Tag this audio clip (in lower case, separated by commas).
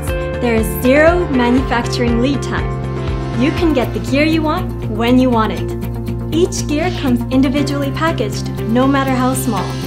music, speech